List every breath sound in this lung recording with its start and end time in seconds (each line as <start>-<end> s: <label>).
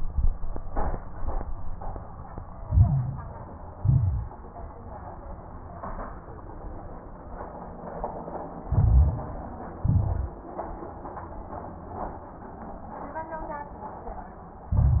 2.66-3.36 s: inhalation
2.66-3.36 s: crackles
3.74-4.44 s: exhalation
3.74-4.44 s: crackles
8.70-9.40 s: inhalation
8.70-9.40 s: crackles
9.84-10.54 s: exhalation
9.84-10.54 s: crackles
14.73-15.00 s: inhalation
14.73-15.00 s: crackles